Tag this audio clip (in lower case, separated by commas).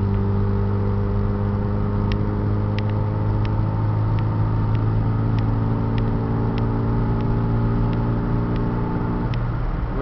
vehicle, car, speech